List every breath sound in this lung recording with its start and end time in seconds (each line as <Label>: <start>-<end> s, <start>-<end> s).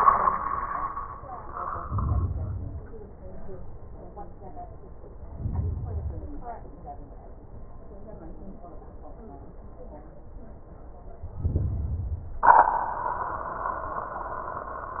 Inhalation: 1.77-2.89 s, 5.25-6.37 s, 11.38-12.49 s